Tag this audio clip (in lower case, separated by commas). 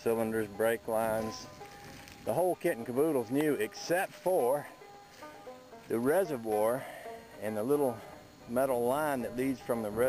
speech, outside, rural or natural, music